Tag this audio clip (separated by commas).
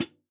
Musical instrument, Percussion, Music, Cymbal, Hi-hat